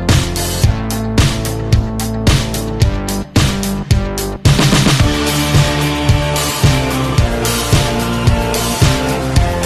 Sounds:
Music

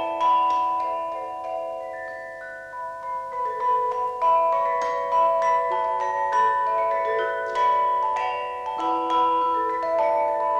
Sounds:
Music

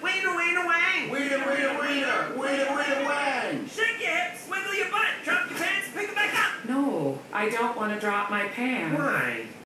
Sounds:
Speech

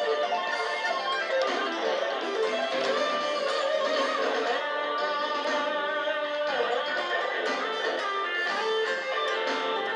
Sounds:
Electric guitar, Musical instrument, Music, Guitar

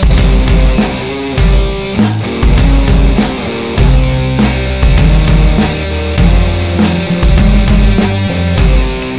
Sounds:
Music

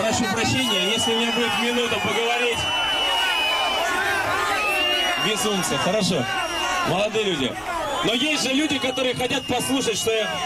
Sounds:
people booing

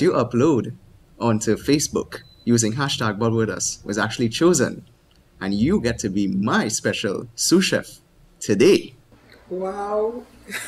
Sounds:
Speech

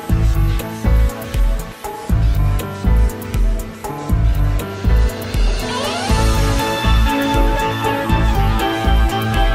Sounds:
Music

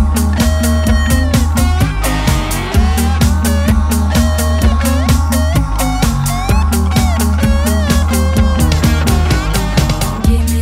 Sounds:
Disco, Music

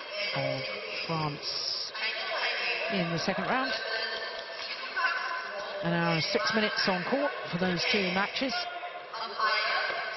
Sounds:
Speech

